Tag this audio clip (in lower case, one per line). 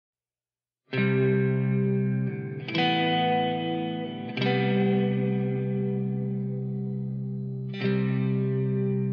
music